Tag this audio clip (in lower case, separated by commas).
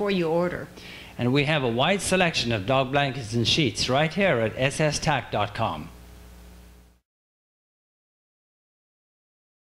speech